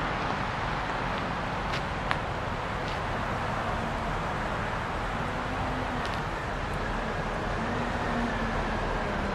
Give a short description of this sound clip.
Oncoming traffic with high wind